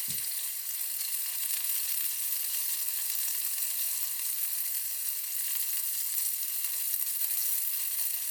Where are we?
in a kitchen